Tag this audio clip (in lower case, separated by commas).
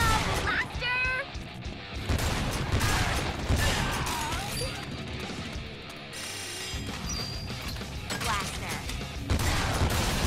music, speech